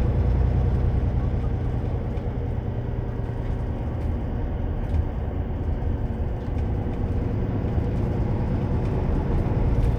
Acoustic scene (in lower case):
bus